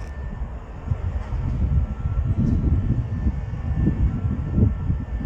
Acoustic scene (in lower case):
residential area